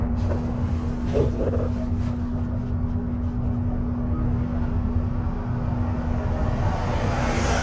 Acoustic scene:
bus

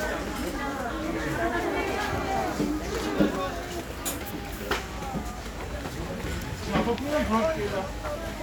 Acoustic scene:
crowded indoor space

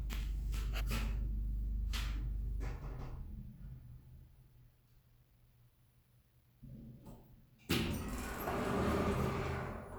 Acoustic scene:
elevator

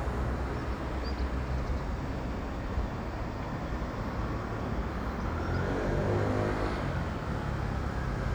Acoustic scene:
street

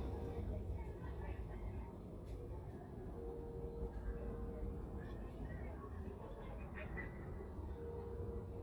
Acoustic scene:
residential area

